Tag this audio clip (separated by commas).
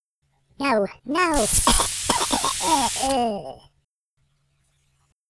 Cough, Respiratory sounds